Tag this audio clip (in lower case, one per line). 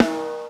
music
percussion
drum
snare drum
musical instrument